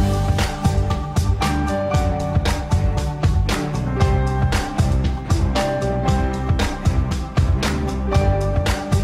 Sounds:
music

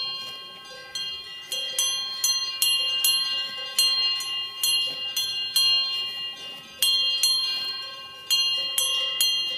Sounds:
cattle

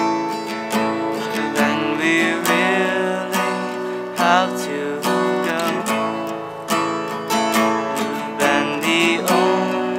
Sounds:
music

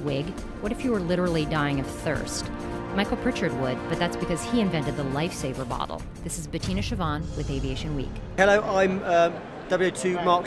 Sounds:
speech, music

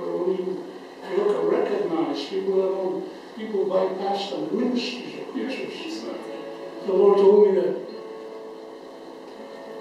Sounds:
music, speech

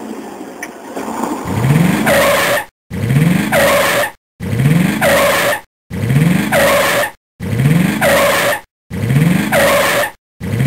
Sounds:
mechanisms

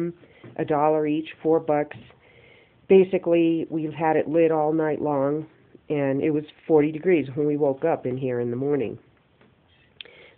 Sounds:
speech, inside a small room

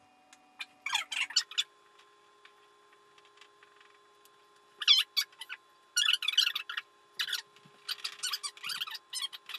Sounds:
inside a small room

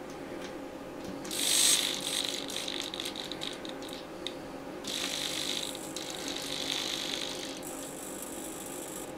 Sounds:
pulleys, gears, mechanisms, pawl

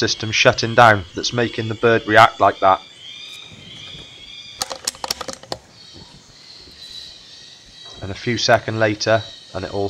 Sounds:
speech

